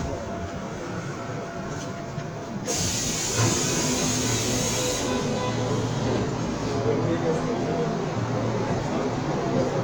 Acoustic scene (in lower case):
subway train